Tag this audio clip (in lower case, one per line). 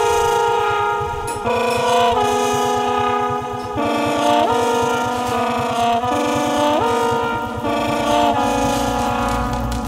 music
inside a small room